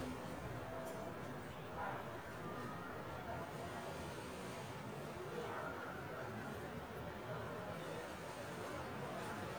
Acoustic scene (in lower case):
residential area